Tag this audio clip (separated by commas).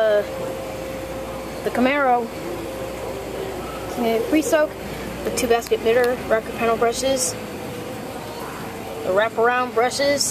Speech